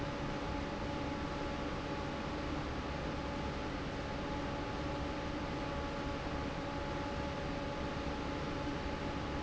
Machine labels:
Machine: fan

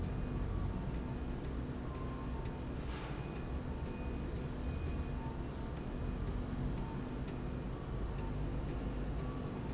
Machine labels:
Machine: slide rail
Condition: normal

